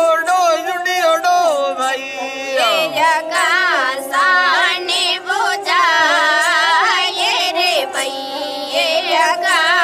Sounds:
Traditional music, Music

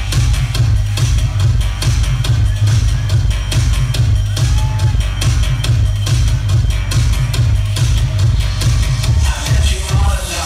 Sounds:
Jazz, Music

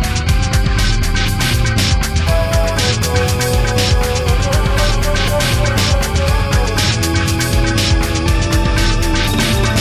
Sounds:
Music

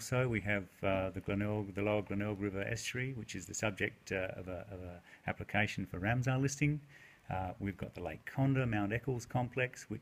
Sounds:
Speech

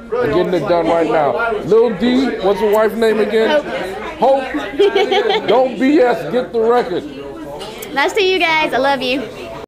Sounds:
Speech

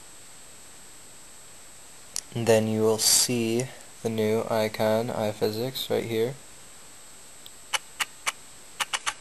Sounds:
inside a small room, Speech

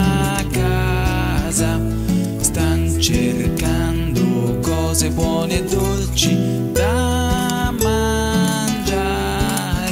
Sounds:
Christmas music, Christian music, Music

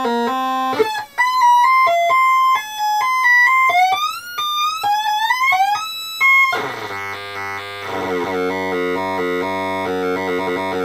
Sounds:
Music, inside a small room

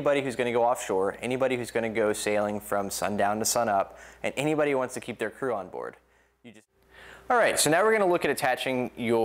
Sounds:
Speech

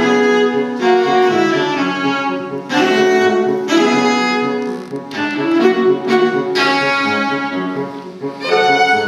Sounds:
Violin, Cello, Music, Bowed string instrument, Piano, Musical instrument

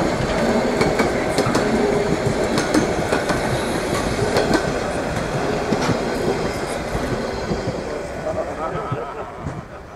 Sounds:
train whistling

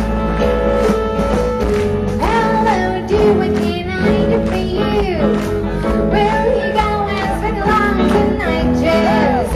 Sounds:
Music, Singing, outside, urban or man-made

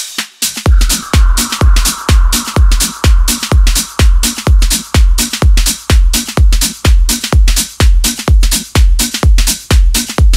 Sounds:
Music

